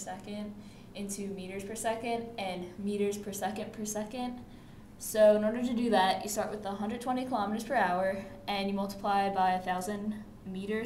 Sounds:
speech

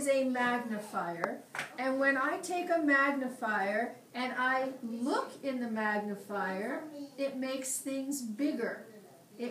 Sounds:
speech

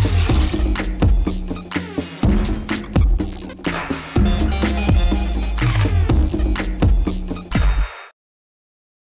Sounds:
music

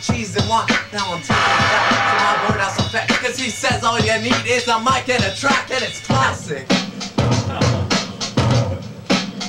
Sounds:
rock music
music

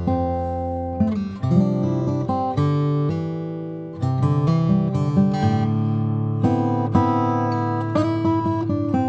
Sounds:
music
guitar
musical instrument

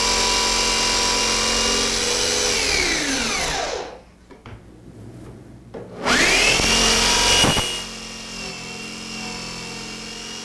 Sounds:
tools
inside a small room

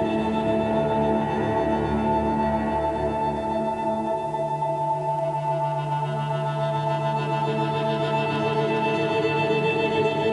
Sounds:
music
independent music

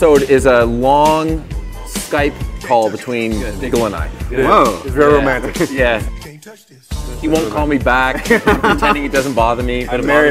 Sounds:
music
speech

